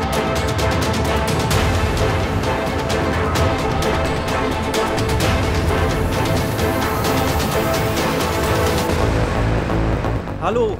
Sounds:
music

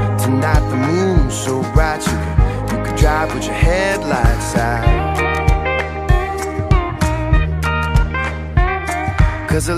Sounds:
music

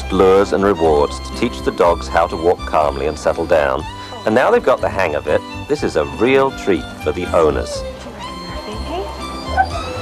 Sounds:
music, domestic animals, dog, animal, whimper (dog), speech

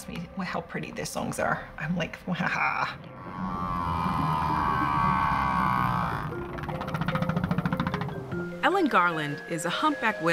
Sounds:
whale calling

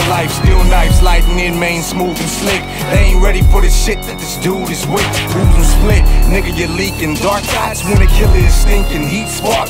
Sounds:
music

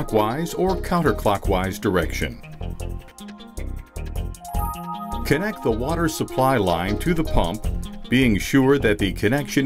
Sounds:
music, speech

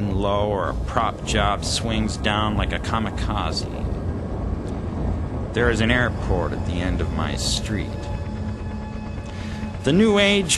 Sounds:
speech, music

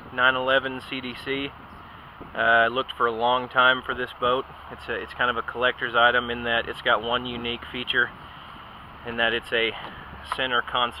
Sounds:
speech

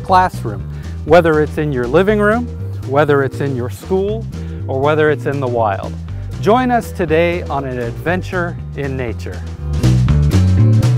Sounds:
speech, music

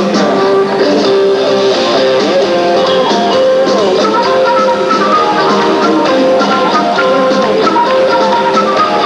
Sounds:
progressive rock, music, rock and roll

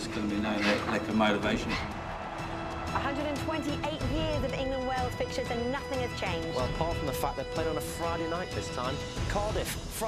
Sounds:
music, speech

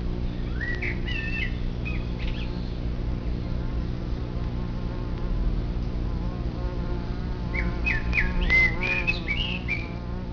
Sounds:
insect, housefly, bee or wasp

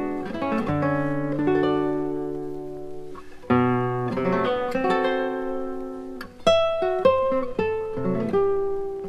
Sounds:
acoustic guitar, plucked string instrument, music, strum, musical instrument, guitar

